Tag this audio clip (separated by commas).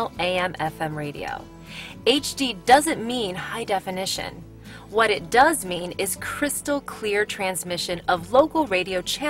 Music, Speech